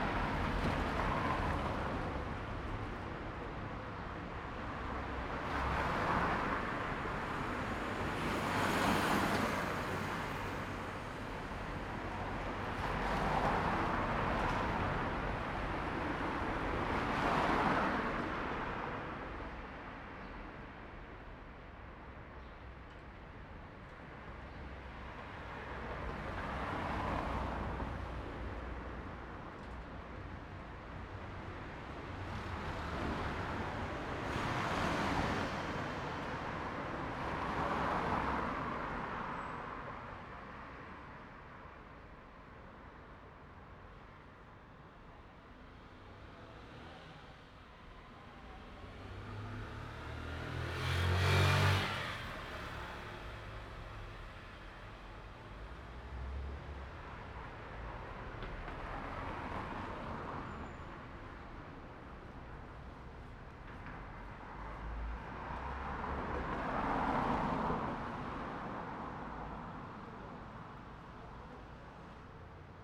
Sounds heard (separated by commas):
people talking, car wheels rolling, motorcycle, car engine accelerating, car, motorcycle engine accelerating